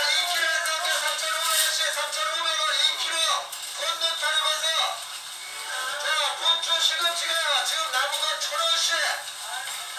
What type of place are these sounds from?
crowded indoor space